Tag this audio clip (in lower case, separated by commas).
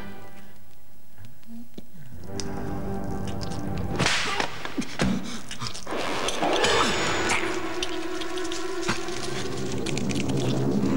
music